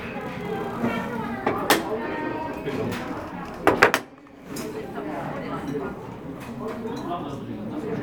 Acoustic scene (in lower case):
crowded indoor space